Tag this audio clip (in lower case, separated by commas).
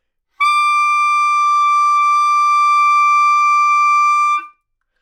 woodwind instrument, musical instrument, music